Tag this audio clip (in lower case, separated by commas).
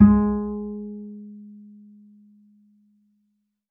musical instrument, music, bowed string instrument